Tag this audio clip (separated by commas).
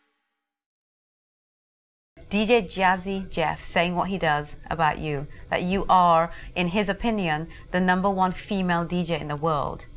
Speech, Female speech